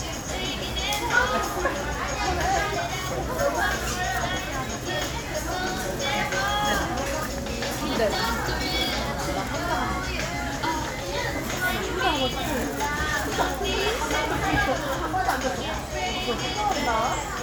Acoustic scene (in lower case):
crowded indoor space